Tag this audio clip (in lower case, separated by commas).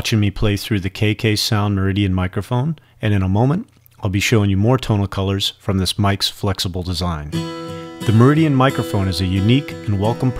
acoustic guitar, music, speech